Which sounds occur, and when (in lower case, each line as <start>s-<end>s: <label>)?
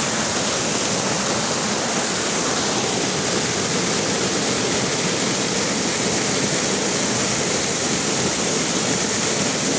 0.0s-9.7s: waterfall